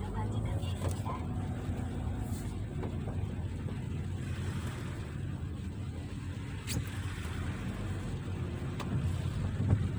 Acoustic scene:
car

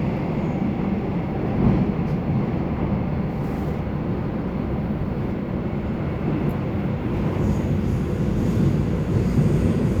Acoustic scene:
subway train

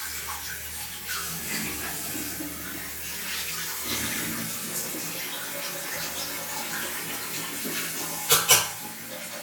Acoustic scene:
restroom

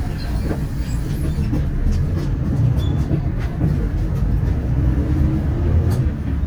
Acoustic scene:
bus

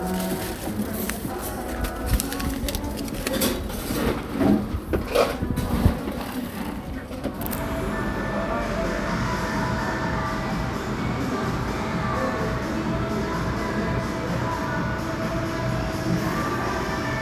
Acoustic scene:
cafe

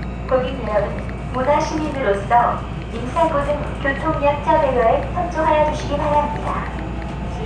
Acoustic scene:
subway train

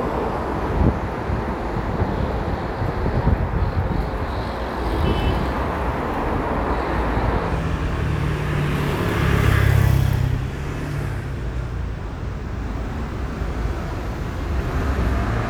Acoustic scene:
street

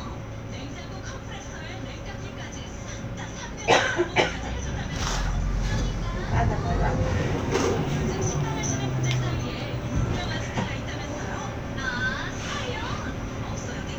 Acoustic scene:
bus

